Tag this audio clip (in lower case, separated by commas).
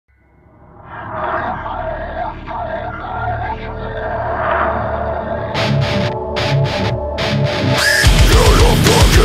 angry music, music